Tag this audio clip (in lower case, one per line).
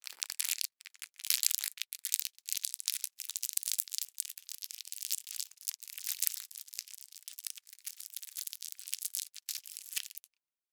crumpling